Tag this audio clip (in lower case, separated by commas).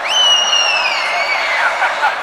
laughter, human voice